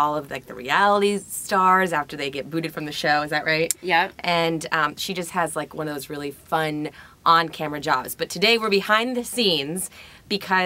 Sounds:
speech

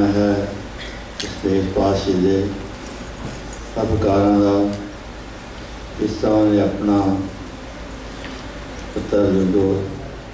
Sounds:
speech
man speaking
narration

